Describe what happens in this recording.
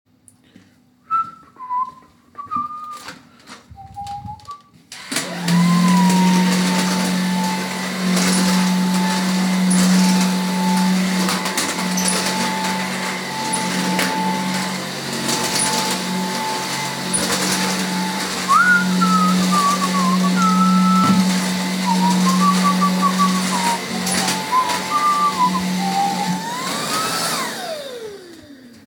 My phone starts ringing on the table, and I walk across the room to pick it up, with the ringing and footsteps overlapping.